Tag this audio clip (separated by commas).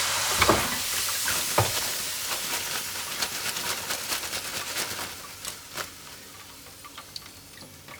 Frying (food), Domestic sounds